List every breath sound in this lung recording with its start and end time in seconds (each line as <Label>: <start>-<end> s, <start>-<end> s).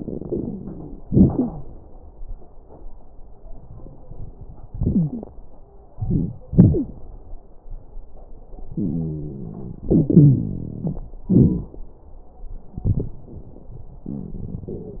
Inhalation: 0.00-1.01 s, 5.90-6.40 s, 9.88-11.21 s
Exhalation: 1.06-1.71 s, 6.50-6.94 s, 11.25-11.75 s
Wheeze: 1.31-1.63 s, 4.76-5.26 s, 6.50-6.94 s, 8.78-9.87 s, 9.88-11.21 s
Crackles: 0.00-1.01 s, 5.90-6.40 s, 11.25-11.75 s